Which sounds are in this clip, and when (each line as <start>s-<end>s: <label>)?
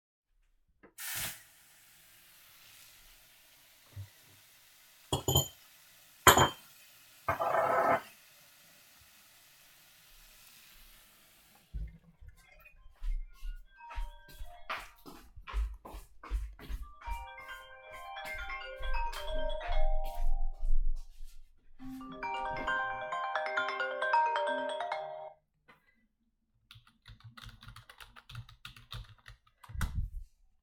0.9s-11.8s: running water
5.0s-8.2s: cutlery and dishes
12.1s-25.6s: phone ringing
13.0s-21.6s: footsteps
26.6s-30.4s: keyboard typing